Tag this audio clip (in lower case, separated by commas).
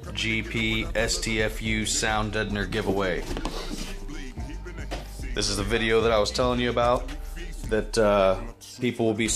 speech, music